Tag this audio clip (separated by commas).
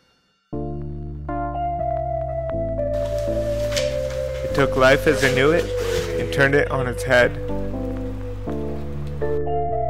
Speech, Music